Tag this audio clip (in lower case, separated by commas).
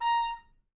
woodwind instrument, music, musical instrument